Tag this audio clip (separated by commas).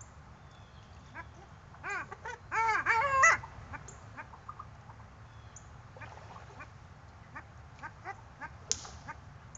Duck